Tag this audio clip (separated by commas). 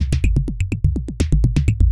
Music, Percussion, Drum kit, Musical instrument